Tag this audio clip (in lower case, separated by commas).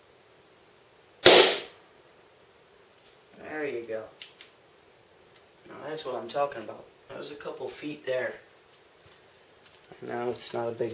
speech